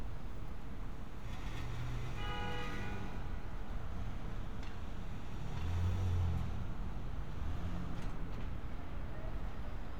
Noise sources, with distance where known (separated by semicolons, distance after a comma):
car horn